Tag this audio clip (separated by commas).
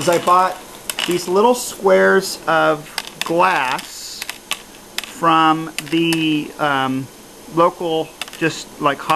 Speech